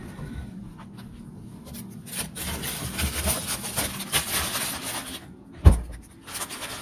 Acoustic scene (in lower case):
kitchen